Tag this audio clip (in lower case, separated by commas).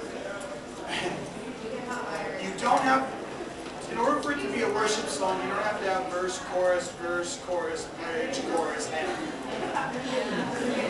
speech